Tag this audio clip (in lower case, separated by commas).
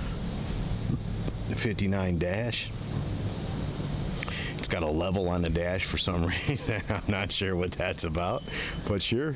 vehicle